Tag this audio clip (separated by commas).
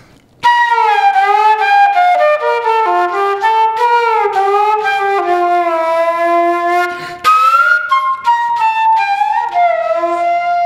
playing flute, Music, Flute, Musical instrument